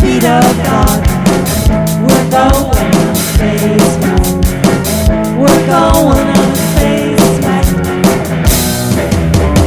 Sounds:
Music

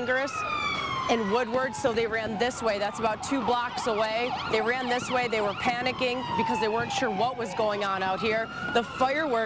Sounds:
Police car (siren)

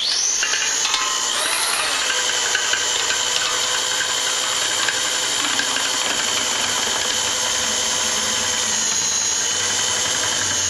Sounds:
inside a small room

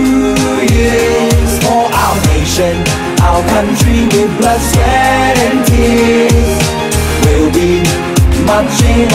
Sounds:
Music, Male singing

